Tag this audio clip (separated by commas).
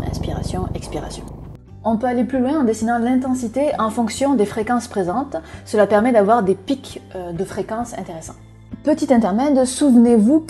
Female speech